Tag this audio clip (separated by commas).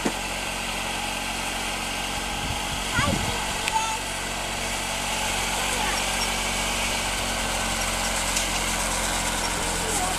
Idling, Vehicle, Engine